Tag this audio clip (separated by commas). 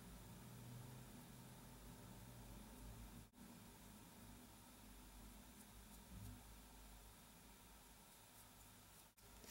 Silence